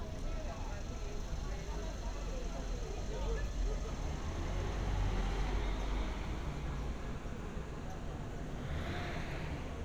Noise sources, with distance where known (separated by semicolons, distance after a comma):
large-sounding engine; person or small group talking